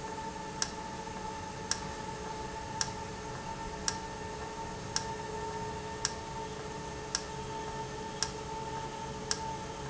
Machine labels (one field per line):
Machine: valve